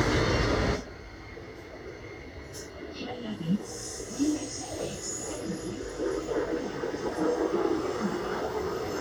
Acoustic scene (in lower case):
subway train